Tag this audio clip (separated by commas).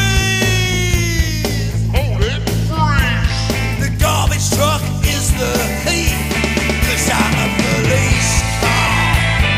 Rock music, Grunge, Music